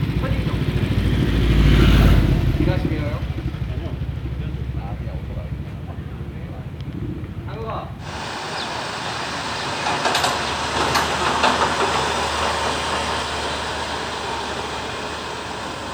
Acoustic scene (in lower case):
residential area